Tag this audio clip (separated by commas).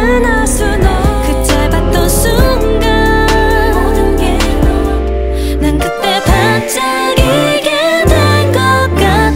Female singing, Music